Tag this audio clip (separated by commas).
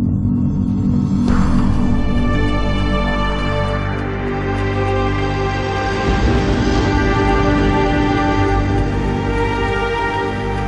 Theme music